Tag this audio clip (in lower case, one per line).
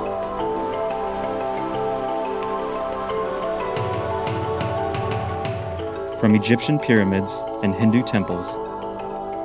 music
speech